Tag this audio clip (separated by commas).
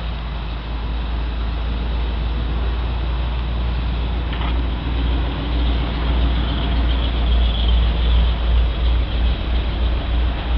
Vehicle